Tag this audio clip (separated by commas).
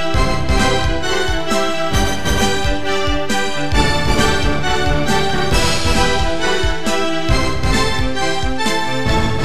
Musical instrument, Music, Piano, Keyboard (musical)